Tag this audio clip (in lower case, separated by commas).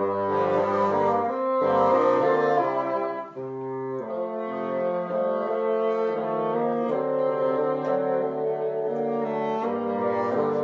playing bassoon